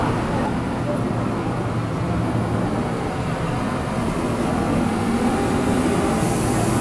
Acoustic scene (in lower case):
subway station